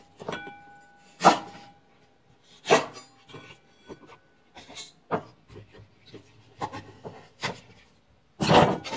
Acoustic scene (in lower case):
kitchen